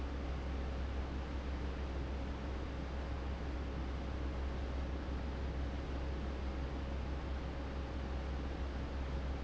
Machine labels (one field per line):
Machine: fan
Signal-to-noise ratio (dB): 0 dB